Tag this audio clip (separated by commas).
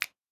Hands, Finger snapping